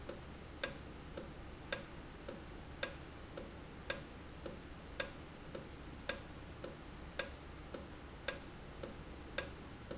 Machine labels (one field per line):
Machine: valve